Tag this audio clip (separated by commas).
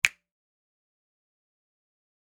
Hands, Finger snapping